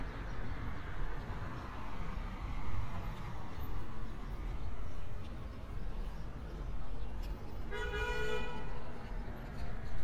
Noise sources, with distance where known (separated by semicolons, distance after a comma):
car horn, near